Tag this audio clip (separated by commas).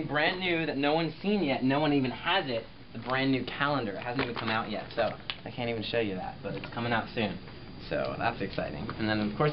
Speech